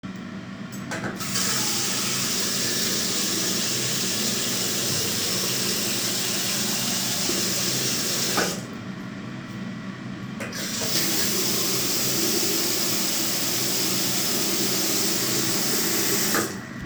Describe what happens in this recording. I walked to the bathroom, and I opened the tap. After a bit I closed the tap. Shortly after I opened it again and the water was running for a bit more, then I closed it again.